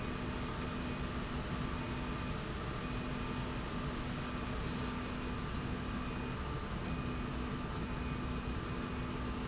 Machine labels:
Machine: slide rail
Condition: normal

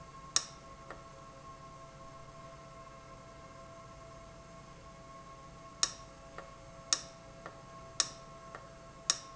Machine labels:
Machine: valve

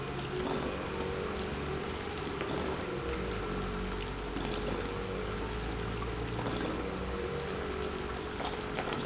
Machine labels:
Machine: pump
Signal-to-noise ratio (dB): -6 dB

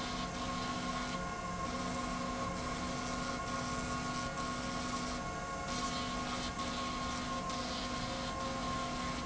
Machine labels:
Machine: slide rail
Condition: abnormal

